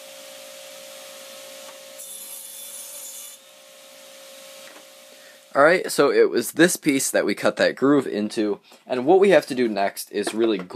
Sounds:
tools

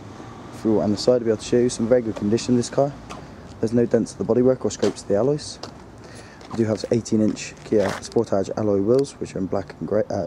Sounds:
speech

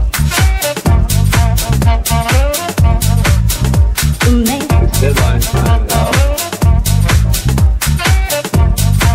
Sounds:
house music
music

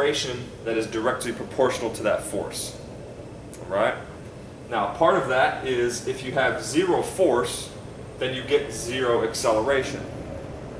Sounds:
speech
inside a small room

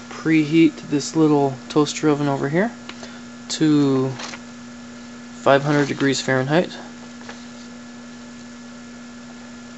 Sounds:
speech

